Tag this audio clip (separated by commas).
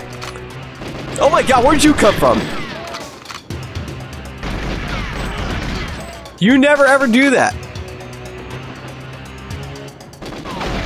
Speech, Music